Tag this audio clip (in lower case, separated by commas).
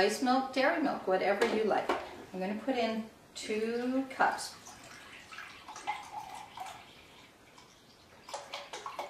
speech